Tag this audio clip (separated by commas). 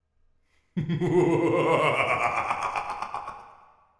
Laughter, Human voice